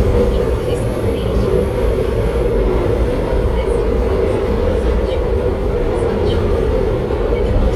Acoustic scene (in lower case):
subway train